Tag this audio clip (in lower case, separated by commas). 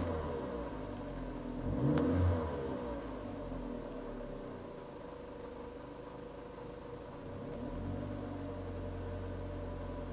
vehicle, vroom